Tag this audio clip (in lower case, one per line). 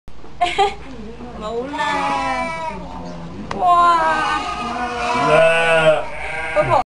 sheep
bleat
speech